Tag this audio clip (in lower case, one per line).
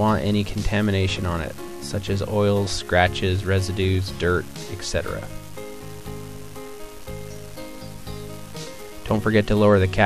music
speech